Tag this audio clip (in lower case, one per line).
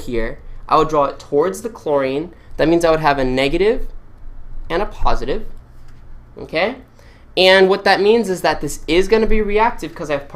speech